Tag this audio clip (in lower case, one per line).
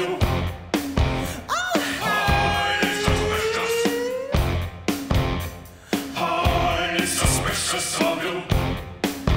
music